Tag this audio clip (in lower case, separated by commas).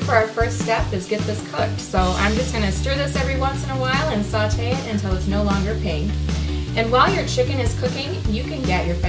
speech, music